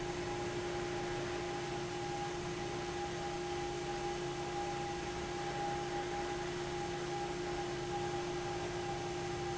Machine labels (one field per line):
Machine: fan